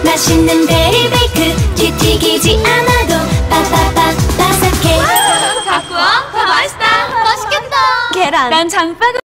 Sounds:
Music, Speech

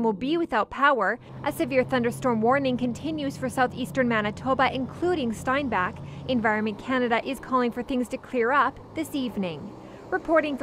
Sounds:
Speech

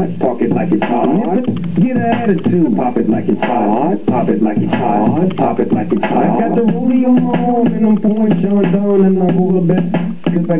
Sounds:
Music, Beatboxing

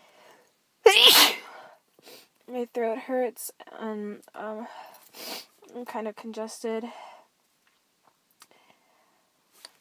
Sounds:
Sneeze, people sneezing, Speech

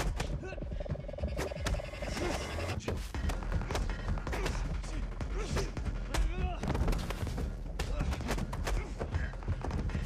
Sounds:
Music

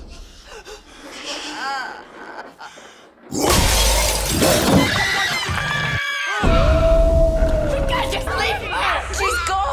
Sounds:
Music, Shatter, Speech

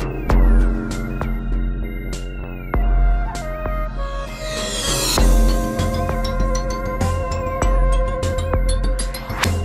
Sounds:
Electronic music, Music

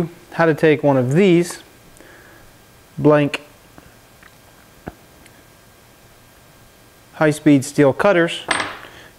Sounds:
Speech

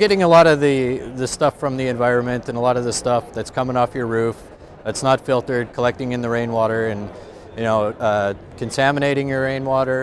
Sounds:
Speech

